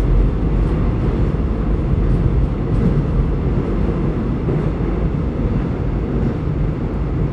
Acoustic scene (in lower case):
subway train